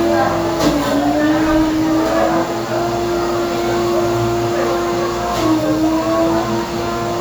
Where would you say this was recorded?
in a cafe